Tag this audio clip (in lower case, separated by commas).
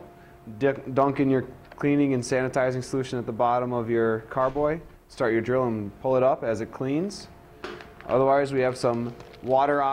speech